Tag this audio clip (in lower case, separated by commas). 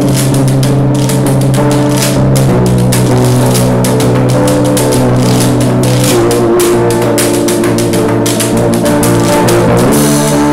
percussion, guitar, music, musical instrument